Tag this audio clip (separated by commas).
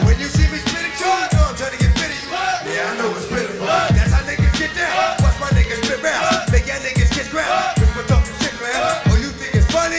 Music, Hip hop music